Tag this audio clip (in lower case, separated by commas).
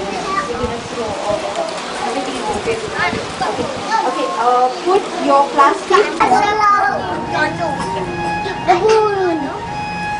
speech